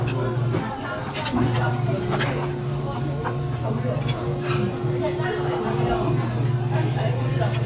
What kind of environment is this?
restaurant